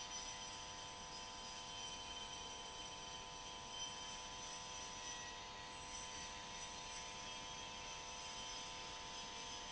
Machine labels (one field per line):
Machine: pump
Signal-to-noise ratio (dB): 6 dB